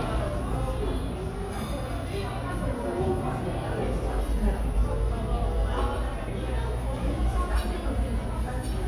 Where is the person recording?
in a cafe